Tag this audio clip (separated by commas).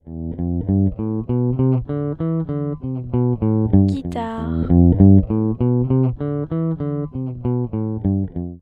Music, Guitar, Musical instrument, Plucked string instrument